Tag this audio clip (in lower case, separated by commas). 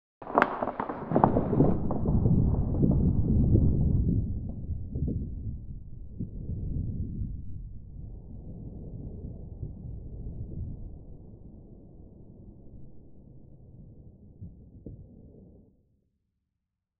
thunder, thunderstorm